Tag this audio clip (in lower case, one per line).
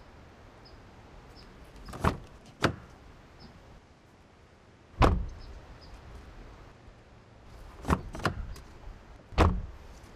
opening or closing car doors